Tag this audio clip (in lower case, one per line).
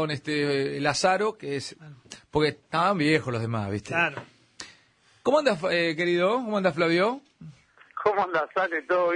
radio
speech